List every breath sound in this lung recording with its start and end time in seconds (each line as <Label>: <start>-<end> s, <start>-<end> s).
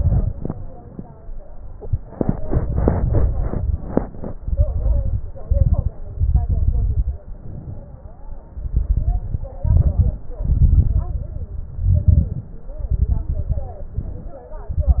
Inhalation: 5.47-5.91 s, 7.26-8.21 s, 9.63-10.18 s, 11.78-12.52 s, 13.97-14.40 s
Exhalation: 0.00-0.55 s, 4.41-5.24 s, 6.19-7.14 s, 8.55-9.50 s, 10.43-11.63 s, 12.81-13.83 s, 14.65-15.00 s
Crackles: 0.00-0.55 s, 4.41-5.24 s, 5.47-5.91 s, 6.19-7.14 s, 8.55-9.50 s, 9.63-10.18 s, 10.43-11.63 s, 11.78-12.52 s, 12.81-13.83 s, 14.65-15.00 s